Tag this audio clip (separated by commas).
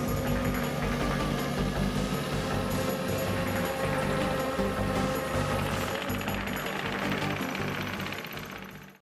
Music, Vehicle